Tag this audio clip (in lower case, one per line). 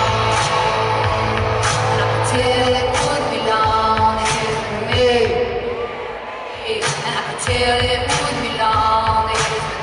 music
female singing